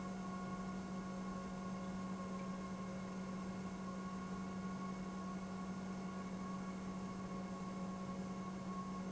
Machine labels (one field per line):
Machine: pump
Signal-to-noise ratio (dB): 6 dB